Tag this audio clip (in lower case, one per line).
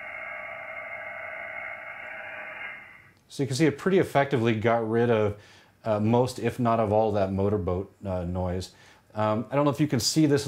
radio